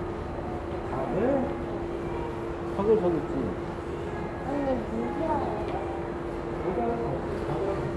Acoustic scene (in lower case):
crowded indoor space